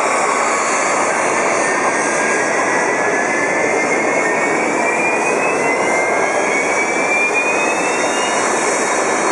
A jet engine whirs loudly